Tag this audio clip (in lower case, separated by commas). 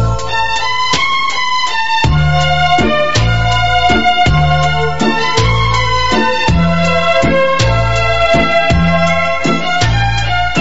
music